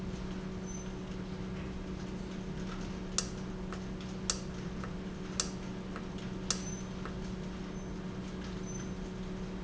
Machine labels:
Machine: valve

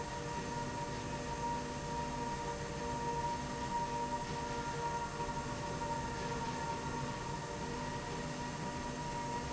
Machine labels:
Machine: slide rail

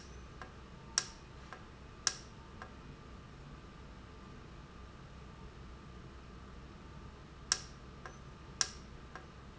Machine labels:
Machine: valve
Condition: normal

